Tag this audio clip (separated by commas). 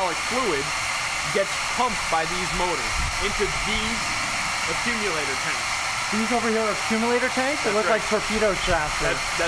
inside a large room or hall, Speech